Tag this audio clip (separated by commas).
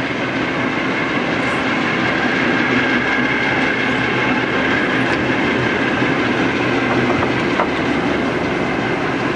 Rail transport, Clickety-clack, Railroad car, Train